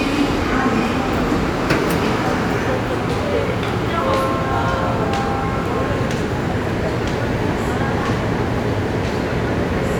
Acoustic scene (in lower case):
subway station